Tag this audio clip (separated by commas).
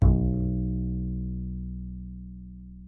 Music, Musical instrument, Bowed string instrument